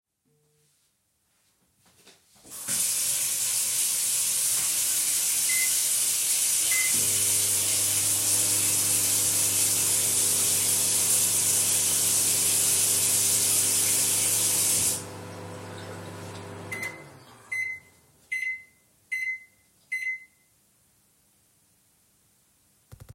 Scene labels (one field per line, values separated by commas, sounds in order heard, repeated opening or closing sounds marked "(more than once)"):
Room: kitchen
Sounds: running water, microwave